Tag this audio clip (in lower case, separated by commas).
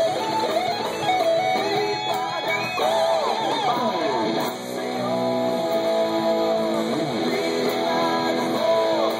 guitar, musical instrument, plucked string instrument, music, strum